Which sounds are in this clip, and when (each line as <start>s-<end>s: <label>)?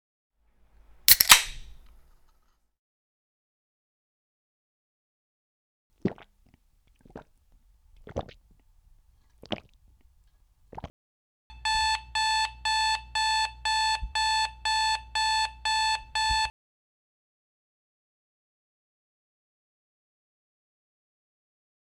11.5s-16.6s: phone ringing